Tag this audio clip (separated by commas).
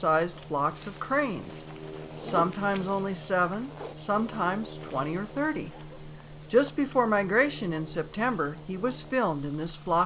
Speech